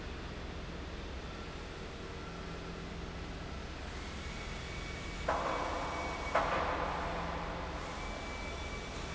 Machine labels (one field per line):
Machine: fan